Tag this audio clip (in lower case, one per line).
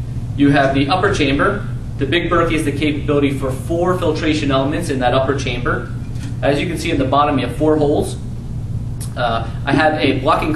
speech